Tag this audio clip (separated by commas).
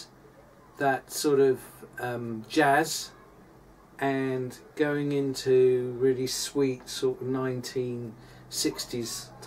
Speech